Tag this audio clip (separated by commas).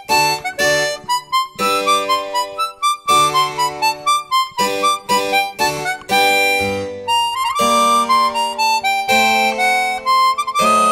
Soundtrack music, Music